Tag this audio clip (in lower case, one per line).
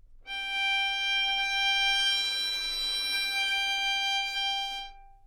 musical instrument
bowed string instrument
music